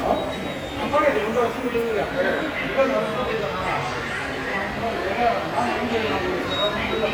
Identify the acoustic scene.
subway station